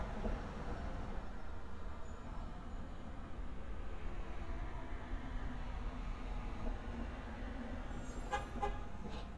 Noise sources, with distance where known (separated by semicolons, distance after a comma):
medium-sounding engine; car horn, near